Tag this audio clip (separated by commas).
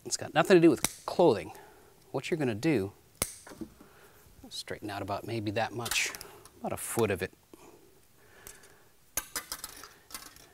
Speech